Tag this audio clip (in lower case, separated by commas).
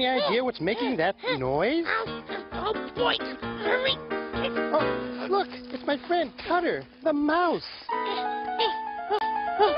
speech, inside a small room, music